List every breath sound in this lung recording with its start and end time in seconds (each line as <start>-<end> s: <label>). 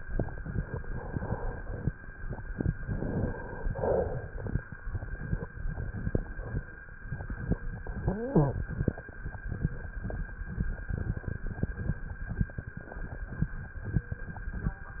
2.84-3.72 s: inhalation
3.70-4.56 s: exhalation
7.85-8.67 s: inhalation
7.85-8.67 s: wheeze
8.69-9.17 s: exhalation